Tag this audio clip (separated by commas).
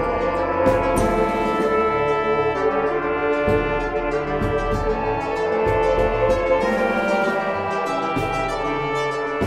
Music, Brass instrument